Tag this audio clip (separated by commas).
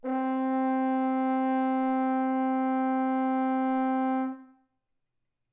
Music, Musical instrument, Brass instrument